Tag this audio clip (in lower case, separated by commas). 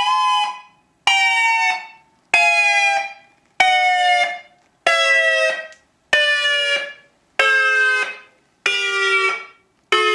siren